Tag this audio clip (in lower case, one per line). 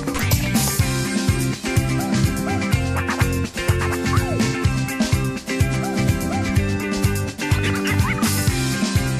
music
exciting music